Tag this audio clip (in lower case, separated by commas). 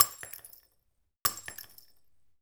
shatter, glass